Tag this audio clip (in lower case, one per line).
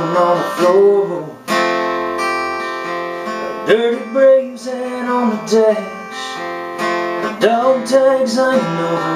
music